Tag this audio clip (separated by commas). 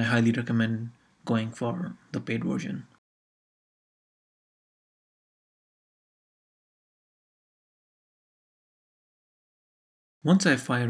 Speech